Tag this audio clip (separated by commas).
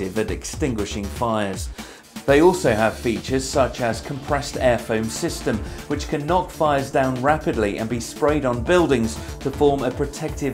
Music, Speech